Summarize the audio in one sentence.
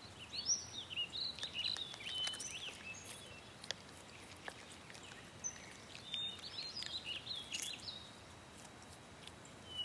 Birds chirp and sing in the distance, and faint crunching sounds are present in the foreground